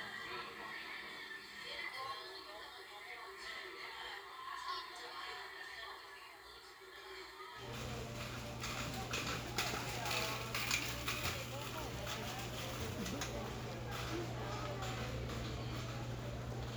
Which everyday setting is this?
crowded indoor space